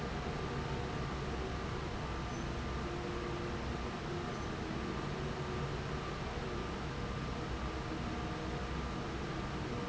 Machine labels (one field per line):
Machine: fan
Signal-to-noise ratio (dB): -6 dB